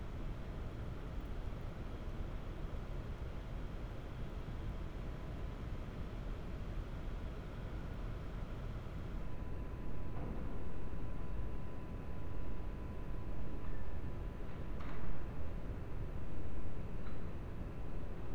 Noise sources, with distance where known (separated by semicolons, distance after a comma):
background noise